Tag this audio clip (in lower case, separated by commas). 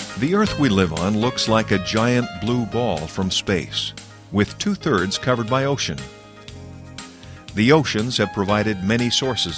speech, music